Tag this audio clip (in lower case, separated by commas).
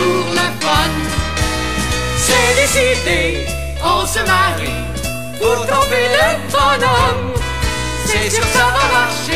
music